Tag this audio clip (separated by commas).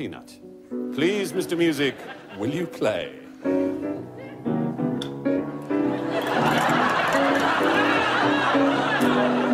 Music, Speech